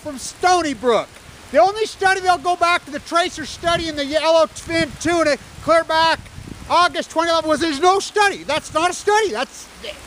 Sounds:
Speech

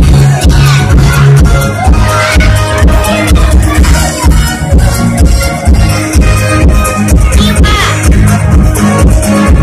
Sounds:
Speech, Music

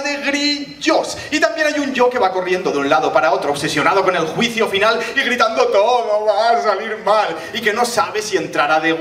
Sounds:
Speech

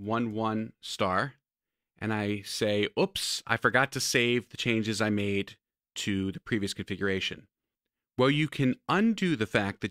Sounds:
Speech

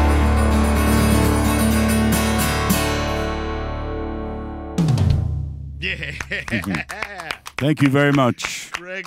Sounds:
Percussion, Drum, Bass drum

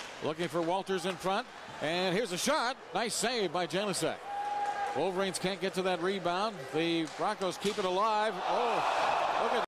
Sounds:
Speech

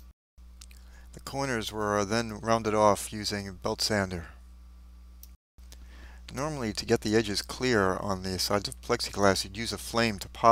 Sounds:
Speech

